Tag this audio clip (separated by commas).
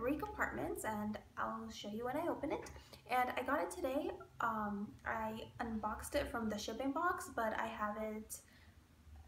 Speech